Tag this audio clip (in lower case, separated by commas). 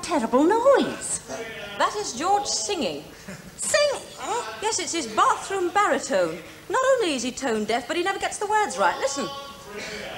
speech